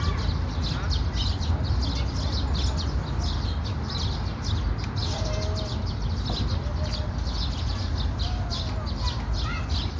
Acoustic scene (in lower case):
park